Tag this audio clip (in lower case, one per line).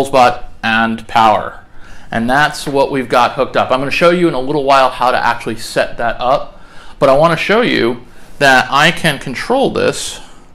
speech